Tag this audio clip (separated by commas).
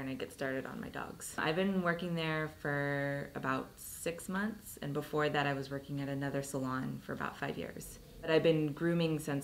Speech